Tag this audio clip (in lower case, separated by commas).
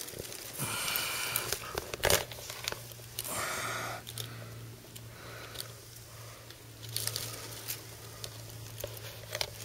outside, rural or natural